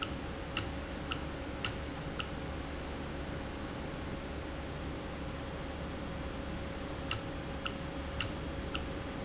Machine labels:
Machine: valve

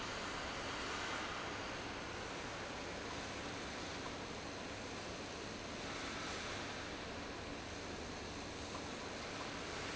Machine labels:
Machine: fan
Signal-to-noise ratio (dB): 0 dB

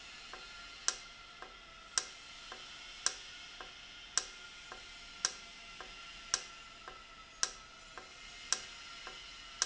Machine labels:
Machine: valve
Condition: normal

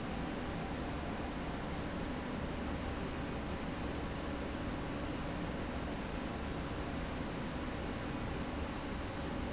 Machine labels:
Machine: slide rail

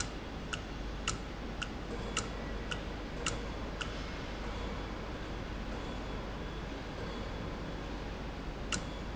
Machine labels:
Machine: valve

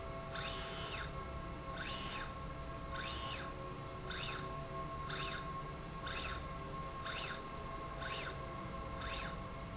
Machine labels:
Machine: slide rail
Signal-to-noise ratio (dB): 0 dB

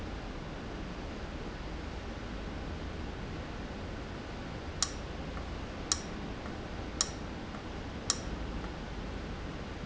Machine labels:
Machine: valve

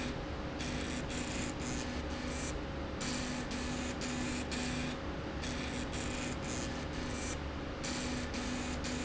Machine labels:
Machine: slide rail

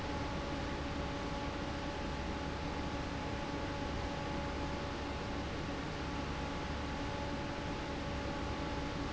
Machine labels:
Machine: fan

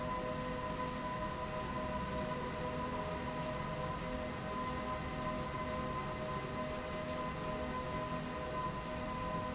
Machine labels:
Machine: slide rail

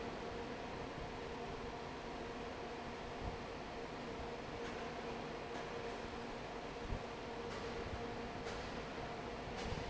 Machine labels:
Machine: fan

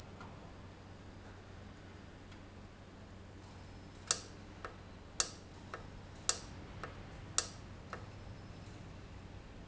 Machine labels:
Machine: valve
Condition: normal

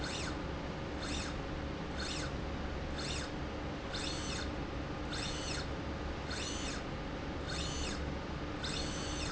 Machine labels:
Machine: slide rail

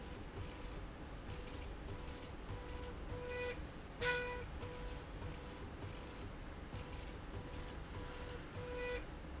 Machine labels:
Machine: slide rail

